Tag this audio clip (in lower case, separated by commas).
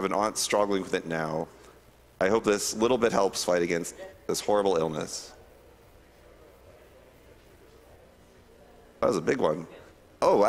speech